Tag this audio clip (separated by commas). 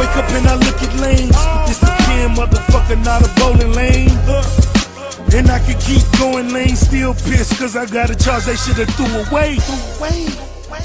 Music, Rapping